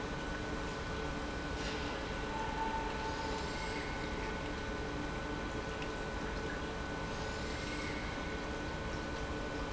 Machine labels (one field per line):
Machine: pump